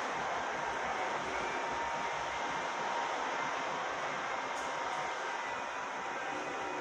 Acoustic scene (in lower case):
subway station